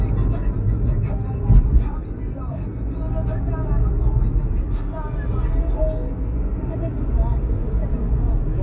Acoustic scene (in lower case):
car